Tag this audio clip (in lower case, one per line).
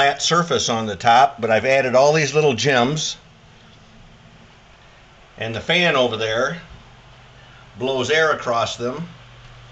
speech